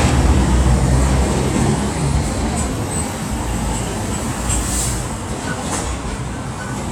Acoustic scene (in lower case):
street